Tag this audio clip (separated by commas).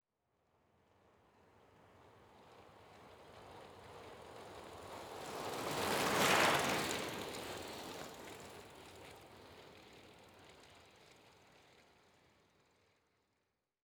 Vehicle, Bicycle